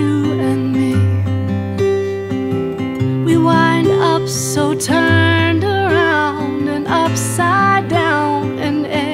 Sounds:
Music

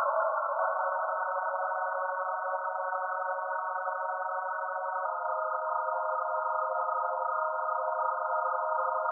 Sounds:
Music

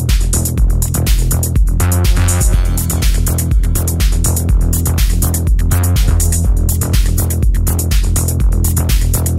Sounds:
Drum machine, Sampler, Music

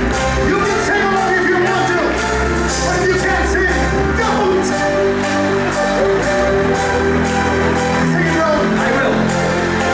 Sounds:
Music, Speech

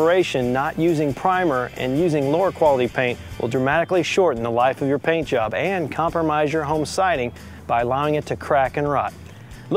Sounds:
Speech, Music

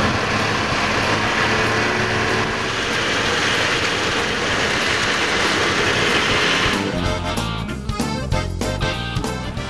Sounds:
Vehicle, Music

